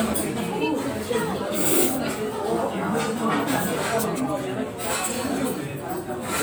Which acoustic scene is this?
restaurant